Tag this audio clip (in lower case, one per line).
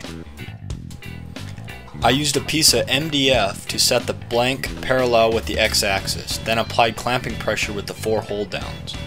speech
music